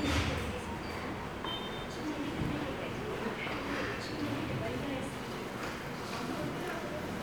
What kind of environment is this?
subway station